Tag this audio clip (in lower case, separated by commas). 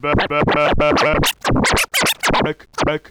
music, musical instrument, scratching (performance technique)